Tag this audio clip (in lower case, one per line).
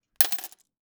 domestic sounds
coin (dropping)